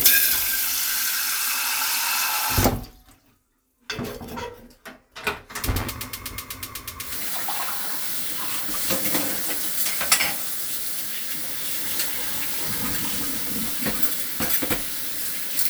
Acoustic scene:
kitchen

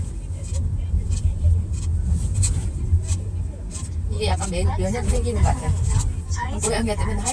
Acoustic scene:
car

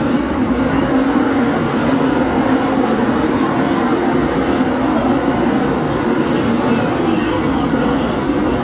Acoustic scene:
subway train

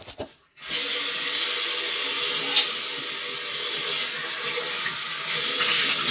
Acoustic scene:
restroom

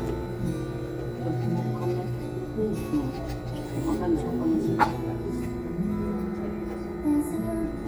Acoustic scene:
crowded indoor space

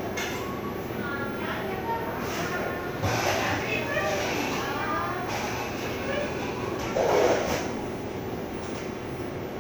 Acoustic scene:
cafe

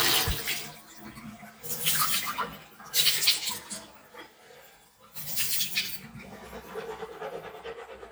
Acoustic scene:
restroom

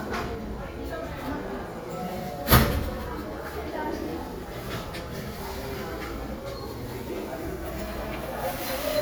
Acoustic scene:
crowded indoor space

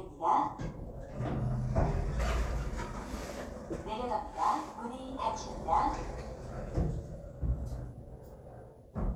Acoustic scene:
elevator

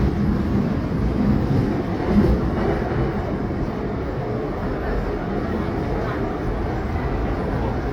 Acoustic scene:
subway train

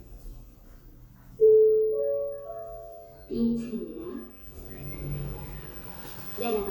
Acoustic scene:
elevator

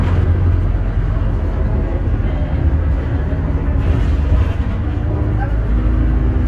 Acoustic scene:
bus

